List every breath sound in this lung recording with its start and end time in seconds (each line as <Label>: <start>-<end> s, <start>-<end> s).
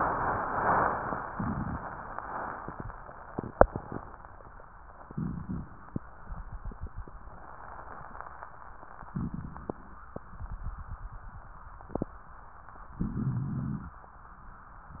Inhalation: 5.03-5.91 s, 9.11-9.99 s, 13.05-13.94 s
Rhonchi: 5.03-5.91 s, 9.11-9.99 s, 13.05-13.94 s